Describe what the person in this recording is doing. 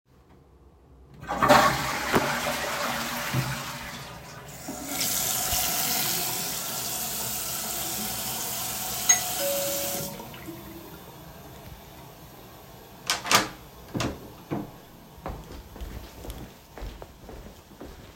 I flushed the toilet, while washing my hands the bell rang, i opened the door and exited the bathroom